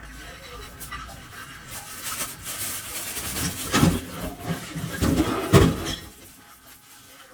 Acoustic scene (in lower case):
kitchen